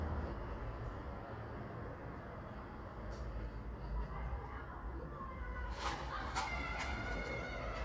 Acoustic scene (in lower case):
residential area